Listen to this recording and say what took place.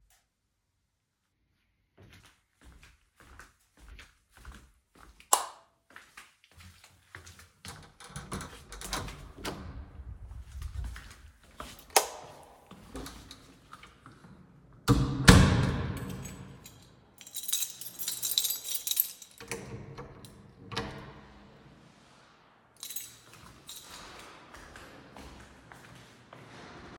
I held the phone while moving toward the apartment exit. I toggled a light switch before leaving the room. I then walked toward the door with keys in hand. The door was opened and closed while footsteps and keychain sounds are audible.